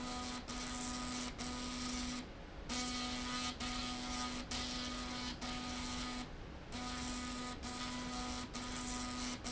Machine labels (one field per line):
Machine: slide rail